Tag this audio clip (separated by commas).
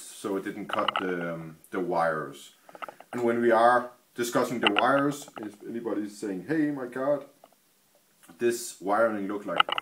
Speech